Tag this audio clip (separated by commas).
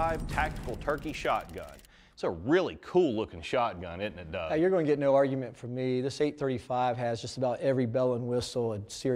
Speech